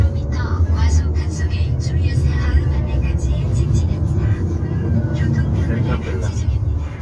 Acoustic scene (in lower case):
car